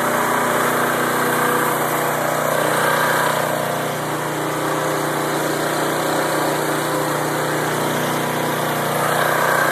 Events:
[0.00, 9.71] lawn mower

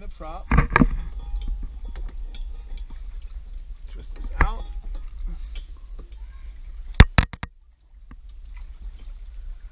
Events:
[0.00, 0.43] man speaking
[0.00, 9.71] boat
[0.00, 9.71] water
[0.00, 9.71] wind
[0.04, 1.46] bell
[0.47, 0.57] tick
[0.71, 0.79] tick
[1.75, 3.19] bell
[1.89, 1.97] tick
[2.30, 2.38] tick
[2.72, 2.78] tick
[3.64, 4.81] man speaking
[4.33, 4.42] tick
[4.36, 5.03] bell
[5.23, 5.70] breathing
[5.45, 5.79] bell
[5.46, 5.56] tick
[5.90, 5.99] tick
[6.06, 6.40] bell
[6.15, 6.39] breathing
[6.94, 7.01] tick
[7.15, 7.20] tick
[7.30, 7.42] tick
[8.06, 8.14] tick
[8.25, 8.29] tick

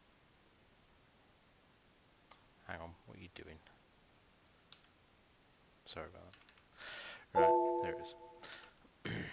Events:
[0.00, 9.32] background noise
[2.25, 2.35] clicking
[2.65, 3.58] male speech
[4.66, 4.76] clicking
[5.83, 6.31] male speech
[6.28, 6.58] clicking
[6.71, 7.23] breathing
[7.29, 7.53] male speech
[7.32, 8.44] alert
[7.76, 8.16] male speech
[8.39, 8.69] breathing

